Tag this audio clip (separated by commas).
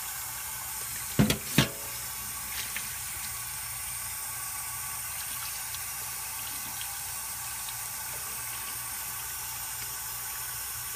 Water, Sink (filling or washing)